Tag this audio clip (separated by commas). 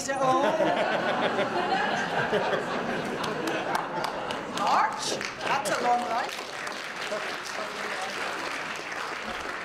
Speech